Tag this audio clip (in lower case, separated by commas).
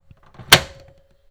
microwave oven, domestic sounds